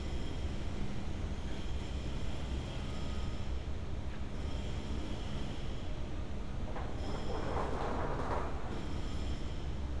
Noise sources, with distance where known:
unidentified impact machinery

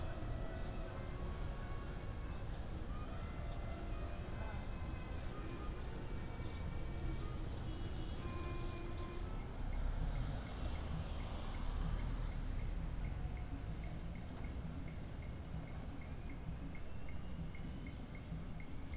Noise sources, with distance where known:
music from a fixed source, far

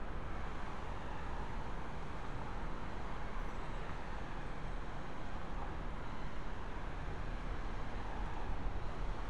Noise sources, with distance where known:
background noise

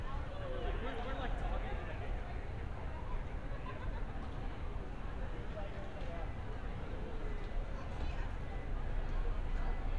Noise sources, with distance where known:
unidentified human voice, near

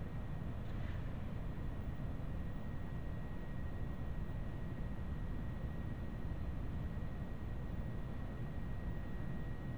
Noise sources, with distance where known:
background noise

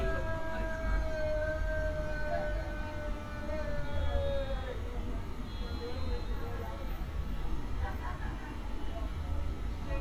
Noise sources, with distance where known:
car horn, far
person or small group shouting, near

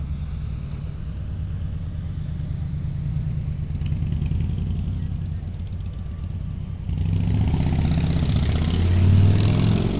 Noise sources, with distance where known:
medium-sounding engine, near

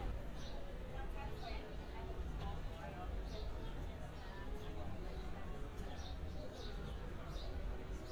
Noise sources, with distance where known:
person or small group talking, near

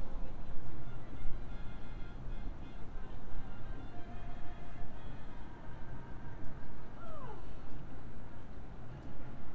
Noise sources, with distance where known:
music from a fixed source, far
unidentified human voice, near

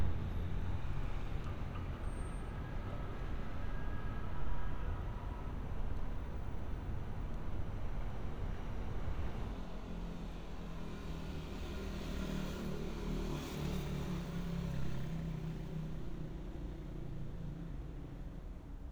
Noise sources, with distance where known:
medium-sounding engine

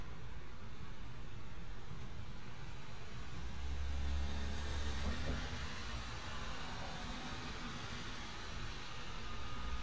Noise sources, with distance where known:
engine of unclear size

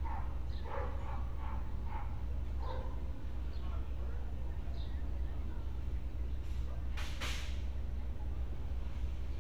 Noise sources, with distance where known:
non-machinery impact
dog barking or whining

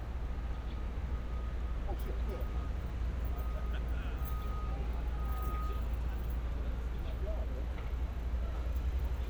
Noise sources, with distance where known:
person or small group talking, far

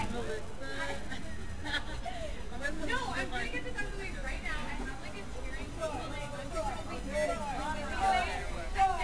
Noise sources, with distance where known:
unidentified human voice, near

